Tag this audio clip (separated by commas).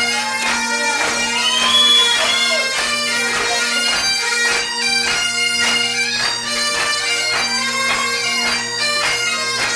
woodwind instrument, Bagpipes